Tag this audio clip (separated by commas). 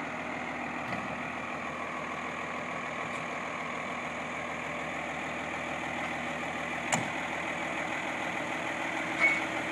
Vehicle